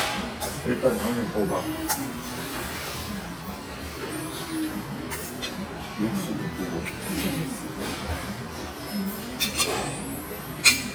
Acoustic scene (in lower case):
restaurant